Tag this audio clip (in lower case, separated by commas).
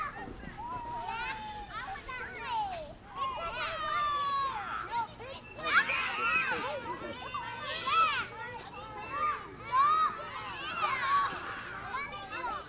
human group actions